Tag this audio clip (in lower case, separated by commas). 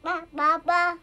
speech, human voice